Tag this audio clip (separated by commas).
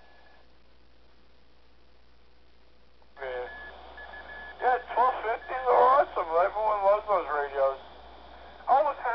Radio, inside a small room, Speech